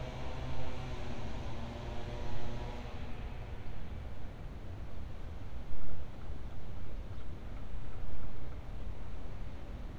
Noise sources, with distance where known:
unidentified powered saw, far

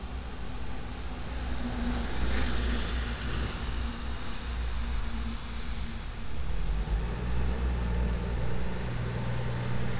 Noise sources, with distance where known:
large-sounding engine, near

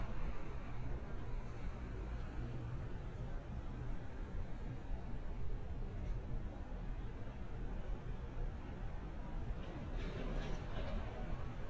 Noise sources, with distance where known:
background noise

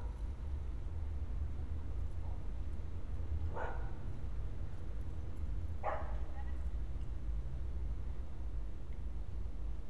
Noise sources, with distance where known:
dog barking or whining, near

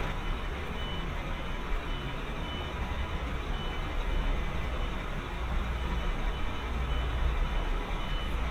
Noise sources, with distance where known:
large-sounding engine, near
reverse beeper, far

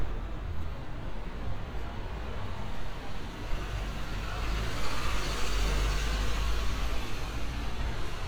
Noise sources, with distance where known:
medium-sounding engine, near

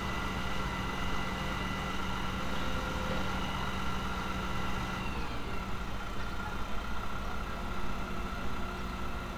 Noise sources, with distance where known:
engine of unclear size

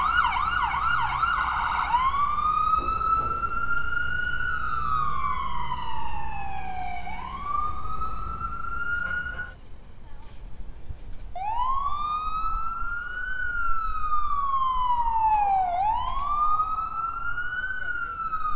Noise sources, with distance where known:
siren, near

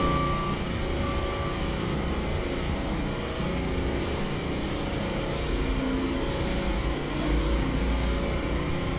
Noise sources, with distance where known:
large-sounding engine

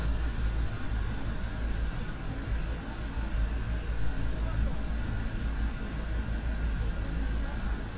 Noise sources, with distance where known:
unidentified human voice, far

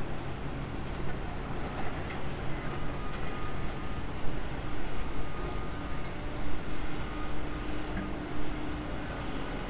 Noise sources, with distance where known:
unidentified alert signal, far

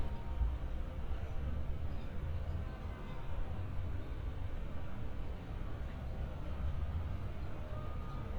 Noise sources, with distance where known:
unidentified alert signal, far

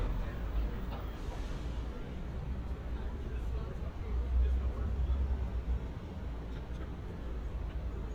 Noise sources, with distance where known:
person or small group talking

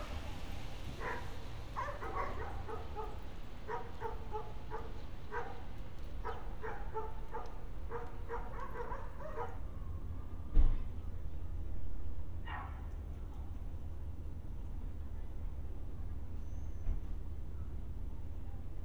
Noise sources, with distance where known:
dog barking or whining, near

